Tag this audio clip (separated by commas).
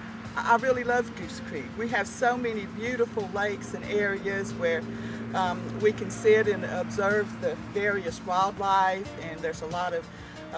Speech, Music